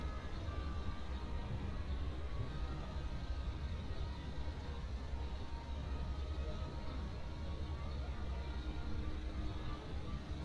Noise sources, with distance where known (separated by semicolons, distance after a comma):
music from an unclear source, far